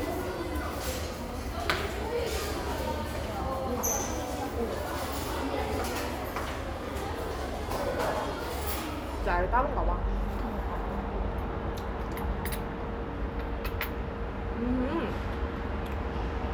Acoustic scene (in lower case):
restaurant